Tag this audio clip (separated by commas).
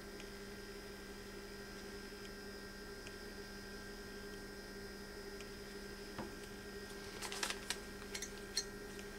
inside a small room